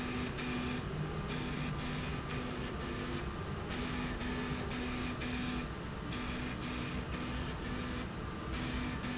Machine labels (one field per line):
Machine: slide rail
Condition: abnormal